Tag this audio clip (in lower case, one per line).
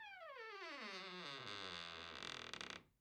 squeak